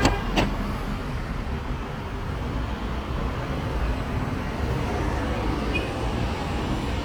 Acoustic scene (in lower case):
street